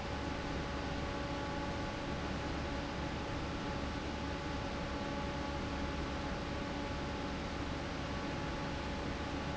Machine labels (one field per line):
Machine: fan